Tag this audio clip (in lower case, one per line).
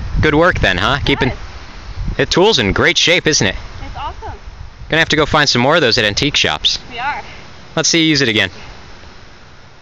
speech